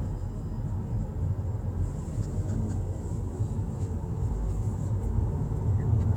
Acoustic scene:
car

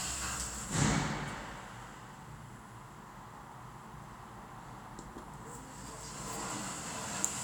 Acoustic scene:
elevator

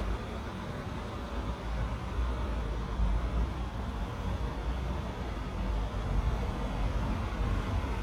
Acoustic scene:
street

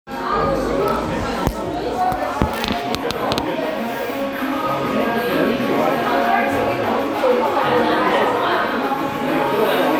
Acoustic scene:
crowded indoor space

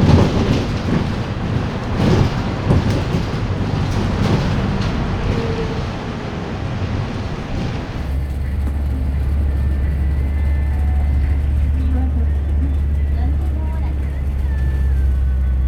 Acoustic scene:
bus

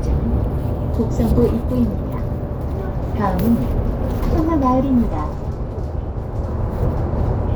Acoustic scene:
bus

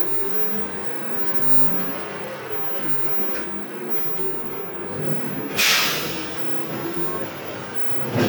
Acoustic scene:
bus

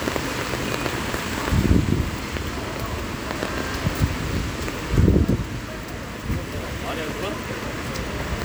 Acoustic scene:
street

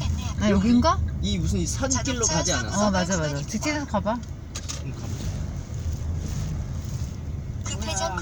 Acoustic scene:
car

